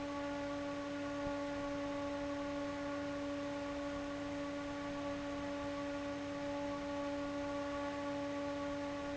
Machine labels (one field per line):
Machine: fan